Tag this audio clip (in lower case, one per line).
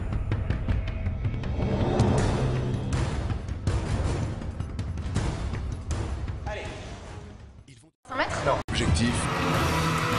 music
speech